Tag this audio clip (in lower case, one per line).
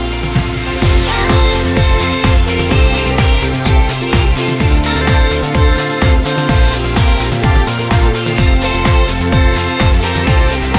music